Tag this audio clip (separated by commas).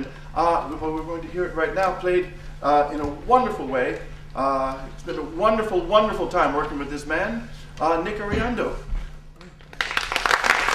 Speech